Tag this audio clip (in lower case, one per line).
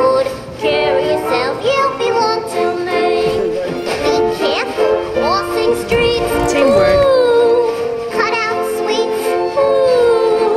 speech
music